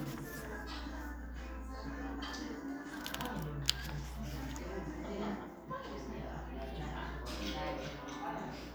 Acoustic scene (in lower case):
crowded indoor space